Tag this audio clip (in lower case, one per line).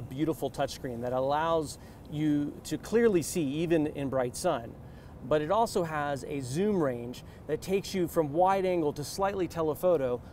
speech